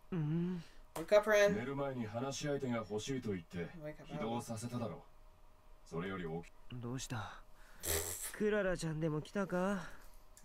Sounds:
Speech

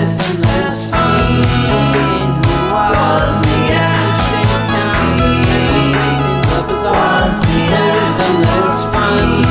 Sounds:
Music, Independent music

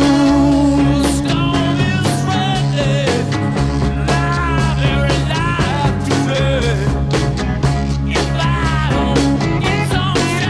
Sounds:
Music, Vehicle, Bicycle

